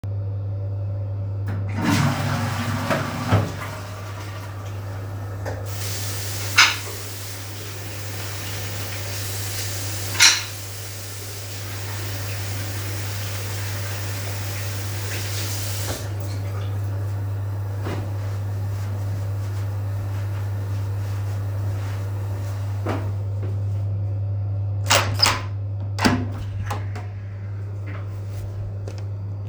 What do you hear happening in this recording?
I flushed the toilet and then washed my hands using my soap from the soap dish. After washing my hands, I dried them with a towel. Finally, I turned the door lock and opened the door to walk out.